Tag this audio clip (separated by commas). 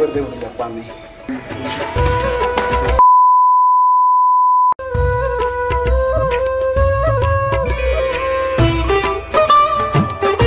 Music, Speech, Sitar